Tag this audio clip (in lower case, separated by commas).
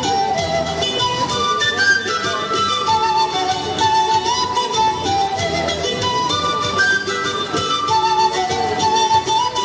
music, playing flute, flute